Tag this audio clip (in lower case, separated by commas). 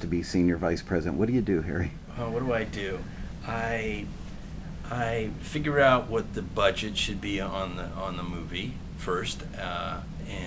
speech